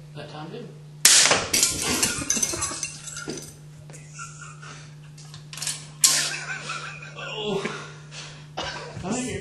An adult male speaks, a crashing sound occurs, then adult males laugh